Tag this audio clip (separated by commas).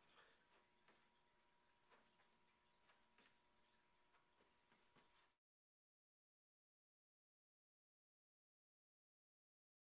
footsteps